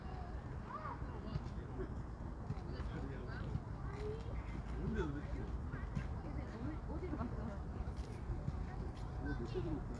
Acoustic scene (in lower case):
residential area